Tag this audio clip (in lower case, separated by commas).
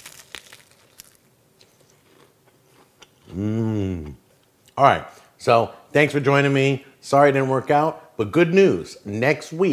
biting, inside a small room, speech, chewing